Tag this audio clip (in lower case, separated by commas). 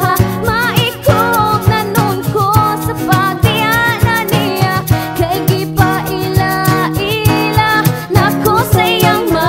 music, singing